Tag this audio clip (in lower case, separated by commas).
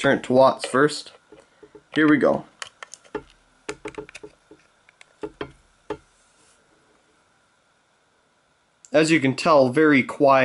speech